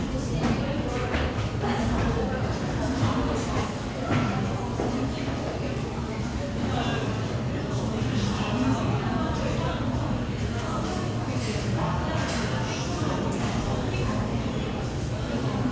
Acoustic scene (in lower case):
crowded indoor space